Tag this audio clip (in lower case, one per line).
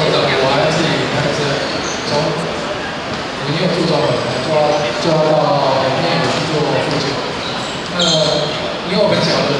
basketball bounce